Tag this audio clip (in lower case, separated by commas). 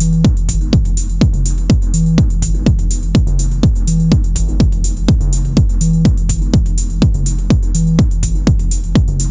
music, techno, electronic music